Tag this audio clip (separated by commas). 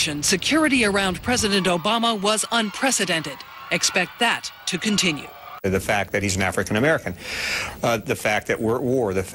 Speech